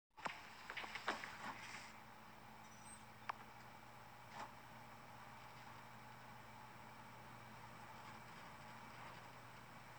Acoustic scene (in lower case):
elevator